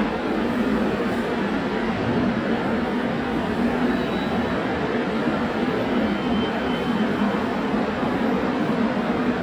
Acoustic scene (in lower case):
subway station